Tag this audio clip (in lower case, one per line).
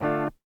music
guitar
musical instrument
plucked string instrument